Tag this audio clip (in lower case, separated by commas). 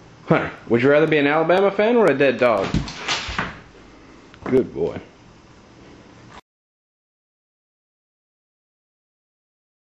speech